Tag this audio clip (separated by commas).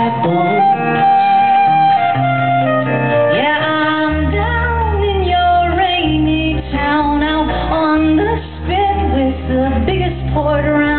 Music, Singing, inside a large room or hall